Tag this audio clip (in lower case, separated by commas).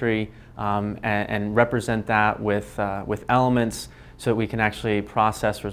speech